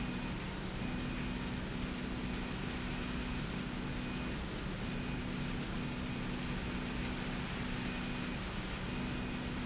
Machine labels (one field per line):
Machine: slide rail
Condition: normal